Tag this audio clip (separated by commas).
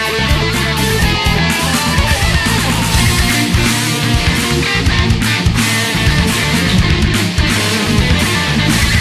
Music, Background music